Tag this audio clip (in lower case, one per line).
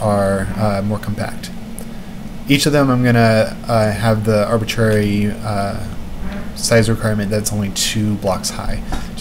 speech